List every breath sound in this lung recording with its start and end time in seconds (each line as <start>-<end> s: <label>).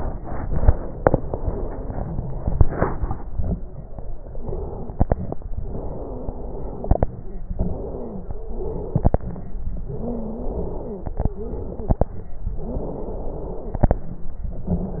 4.37-5.45 s: exhalation
4.37-5.45 s: wheeze
5.60-6.89 s: exhalation
5.60-6.89 s: wheeze
7.58-9.04 s: exhalation
7.58-9.04 s: wheeze
9.86-11.27 s: exhalation
9.86-11.27 s: wheeze
12.58-13.98 s: exhalation
12.58-13.98 s: wheeze
14.63-15.00 s: exhalation
14.63-15.00 s: wheeze